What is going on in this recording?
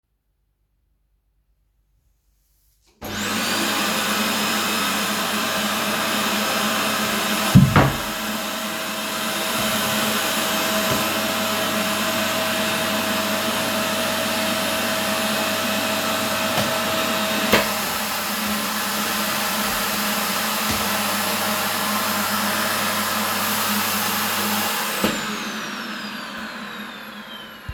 I turned on the vacuum cleaner, cleaned the floor a bit, moved some furniture and then turned off the vacuum cleaner.